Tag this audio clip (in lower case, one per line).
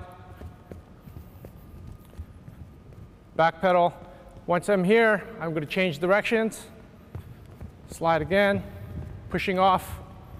speech